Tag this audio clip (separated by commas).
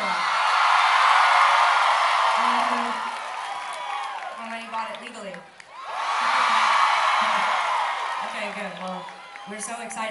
Speech